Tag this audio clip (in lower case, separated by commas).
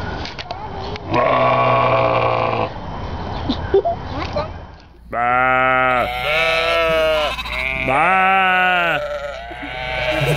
sheep bleating